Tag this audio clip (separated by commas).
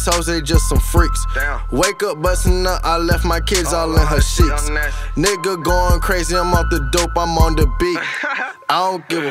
Music